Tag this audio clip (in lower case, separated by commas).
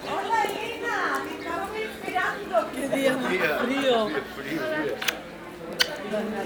speech, human voice